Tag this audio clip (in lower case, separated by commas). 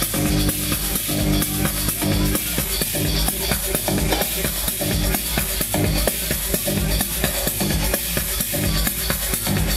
speech, music